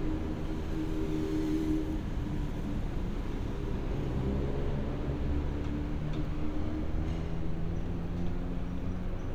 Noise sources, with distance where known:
engine of unclear size, far

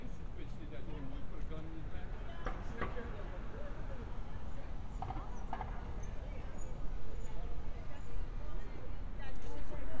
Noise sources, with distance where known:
unidentified human voice

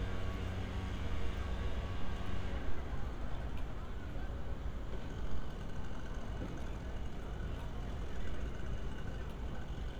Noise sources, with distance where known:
small-sounding engine; person or small group talking, far

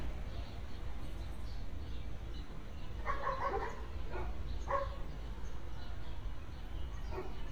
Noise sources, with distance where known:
dog barking or whining, near

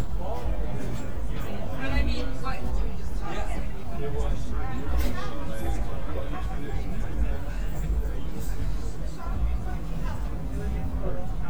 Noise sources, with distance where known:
person or small group talking, near

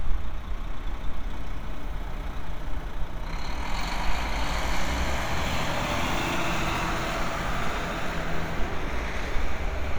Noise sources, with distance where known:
large-sounding engine

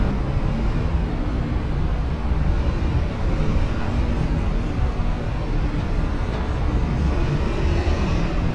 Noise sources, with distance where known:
large-sounding engine

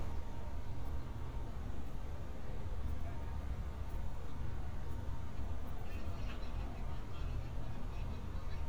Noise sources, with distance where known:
person or small group talking, far

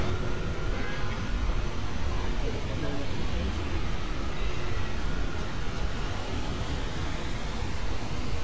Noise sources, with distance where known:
large-sounding engine, near; car horn, far; siren, far

